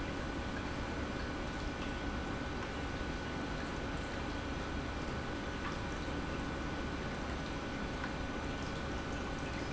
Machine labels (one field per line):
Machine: pump